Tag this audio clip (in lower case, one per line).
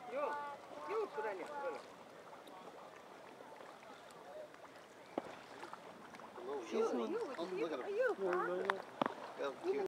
speech